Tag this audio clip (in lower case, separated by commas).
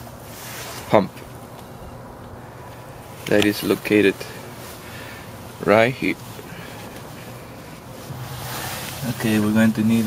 speech